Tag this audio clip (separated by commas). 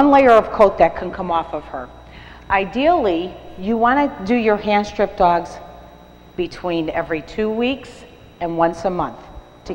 Speech